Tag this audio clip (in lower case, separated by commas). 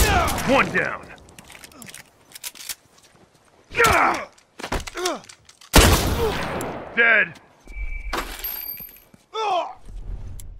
speech